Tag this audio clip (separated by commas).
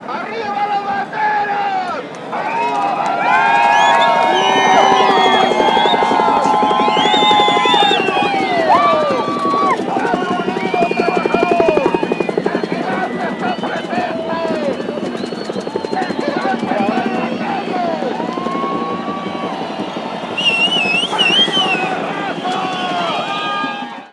Aircraft, Vehicle